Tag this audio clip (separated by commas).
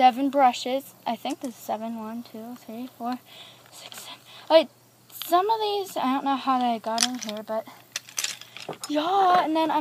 Speech